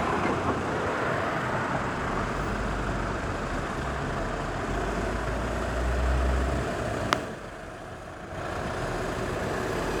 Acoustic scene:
street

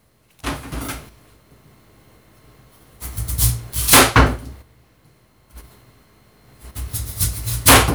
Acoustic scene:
kitchen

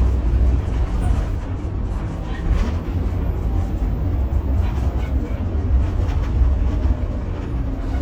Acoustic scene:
bus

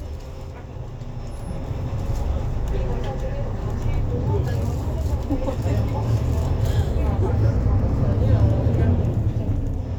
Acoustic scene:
bus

